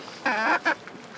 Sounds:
chicken, livestock, animal, fowl

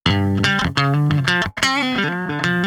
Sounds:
guitar, electric guitar, music, musical instrument, plucked string instrument

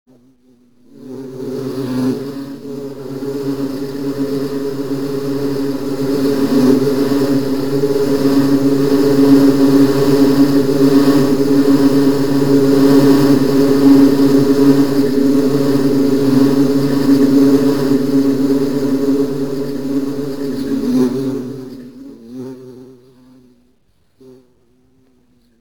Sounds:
insect, animal, wild animals

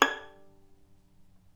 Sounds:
musical instrument, bowed string instrument, music

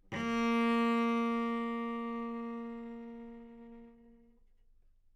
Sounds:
musical instrument, music, bowed string instrument

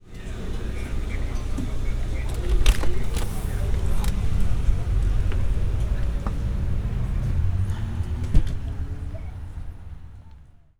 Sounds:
vehicle

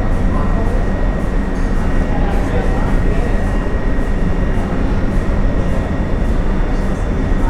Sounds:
metro, rail transport, vehicle

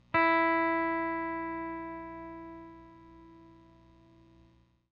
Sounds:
plucked string instrument, musical instrument, electric guitar, guitar, music

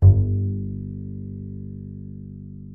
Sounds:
music, bowed string instrument, musical instrument

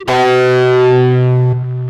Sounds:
musical instrument, guitar, music, electric guitar, plucked string instrument

